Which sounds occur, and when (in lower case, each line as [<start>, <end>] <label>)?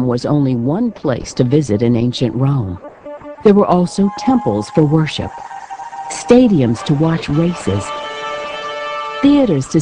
[0.00, 2.76] female speech
[0.00, 9.81] music
[0.00, 9.81] television
[3.36, 5.32] female speech
[6.07, 7.90] female speech
[9.23, 9.81] female speech